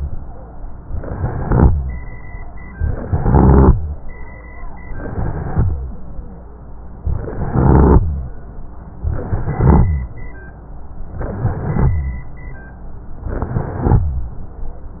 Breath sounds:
Inhalation: 0.84-2.11 s, 4.88-5.75 s, 7.00-8.37 s, 9.05-10.17 s, 11.16-12.28 s, 13.30-14.42 s
Rhonchi: 0.84-2.11 s, 4.88-5.75 s, 7.00-8.37 s, 9.05-10.17 s, 11.16-12.28 s, 13.30-14.42 s

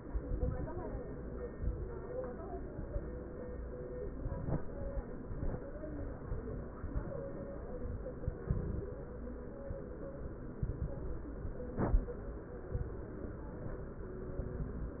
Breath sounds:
Inhalation: 0.00-0.78 s, 8.21-8.99 s
Crackles: 0.00-0.78 s, 8.21-8.99 s

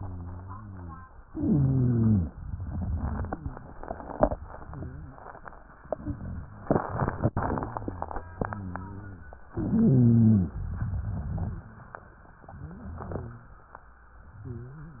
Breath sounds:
Inhalation: 1.25-2.32 s, 9.54-10.53 s
Exhalation: 2.41-3.72 s, 10.57-11.73 s
Rhonchi: 0.00-1.06 s, 1.25-2.32 s, 4.59-5.20 s, 7.67-9.46 s, 9.54-10.53 s, 12.52-13.68 s, 14.38-15.00 s
Crackles: 2.41-3.72 s, 10.57-11.73 s

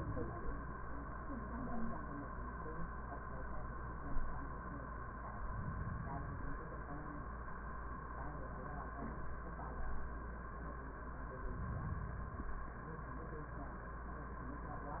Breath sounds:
Inhalation: 5.25-6.75 s, 11.30-12.80 s

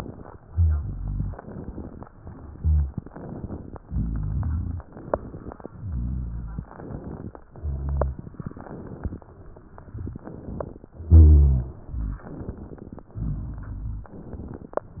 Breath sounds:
Inhalation: 0.00-0.38 s, 1.33-2.04 s, 3.07-3.77 s, 4.90-5.69 s, 6.74-7.41 s, 8.36-9.18 s, 10.22-10.90 s, 12.28-13.08 s, 14.11-14.84 s
Exhalation: 0.38-1.32 s, 2.08-2.97 s, 3.84-4.83 s, 5.73-6.67 s, 7.51-8.26 s, 9.31-10.14 s, 11.04-12.22 s, 13.12-14.08 s, 14.94-15.00 s
Crackles: 9.71-10.14 s

